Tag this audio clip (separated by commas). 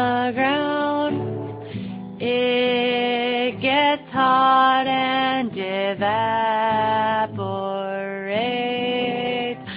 Music